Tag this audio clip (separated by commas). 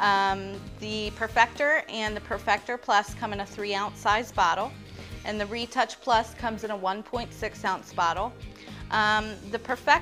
Speech